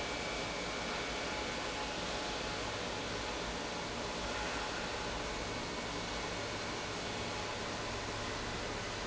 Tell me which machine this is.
pump